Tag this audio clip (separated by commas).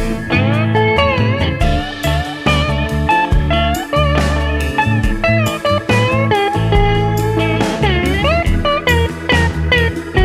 slide guitar